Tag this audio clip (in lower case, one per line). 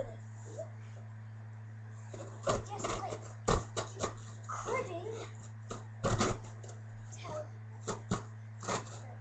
speech